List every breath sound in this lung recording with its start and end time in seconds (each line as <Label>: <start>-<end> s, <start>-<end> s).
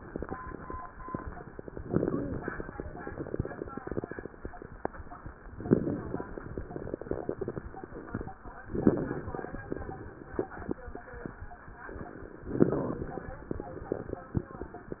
Inhalation: 1.78-2.75 s, 5.56-6.60 s, 8.67-9.60 s, 12.54-13.49 s
Crackles: 1.78-2.75 s, 2.83-4.35 s, 5.56-6.60 s, 6.70-8.39 s, 8.67-9.60 s, 9.70-10.80 s, 12.54-13.49 s, 13.53-15.00 s